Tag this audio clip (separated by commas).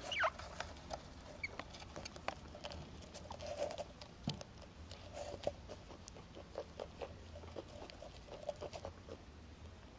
chinchilla barking